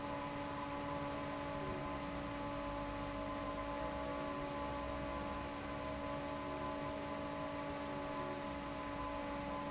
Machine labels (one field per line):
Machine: fan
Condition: normal